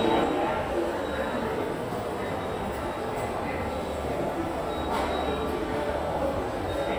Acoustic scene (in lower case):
subway station